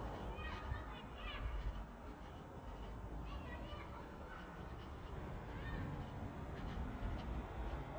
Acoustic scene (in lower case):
residential area